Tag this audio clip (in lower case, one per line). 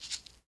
music
rattle (instrument)
musical instrument
percussion